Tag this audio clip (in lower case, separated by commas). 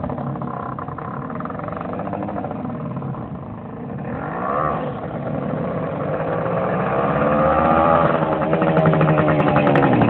outside, urban or man-made, motorcycle, vehicle